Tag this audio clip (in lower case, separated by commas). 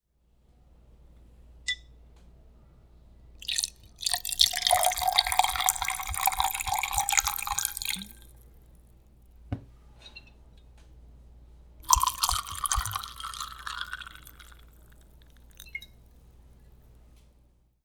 liquid